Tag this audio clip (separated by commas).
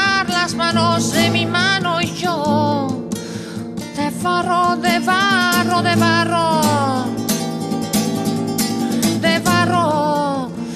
Music